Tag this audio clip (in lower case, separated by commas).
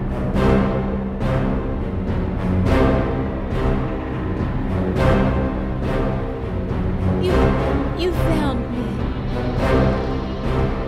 speech, music